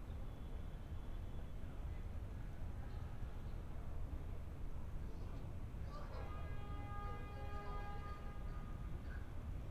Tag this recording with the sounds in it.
unidentified alert signal